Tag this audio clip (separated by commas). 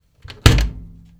Slam, Domestic sounds, Door